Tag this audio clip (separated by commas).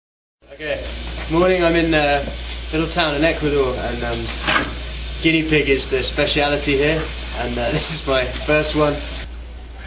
Speech